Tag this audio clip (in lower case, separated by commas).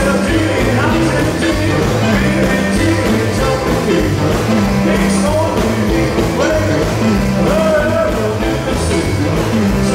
singing, rock and roll, music